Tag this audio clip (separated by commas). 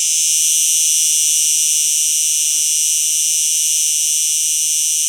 Animal, Insect, Wild animals